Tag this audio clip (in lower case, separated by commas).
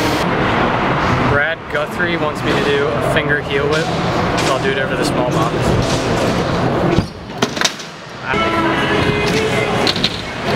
music, speech, door